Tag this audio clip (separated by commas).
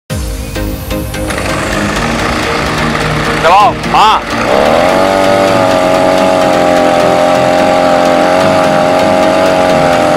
pumping water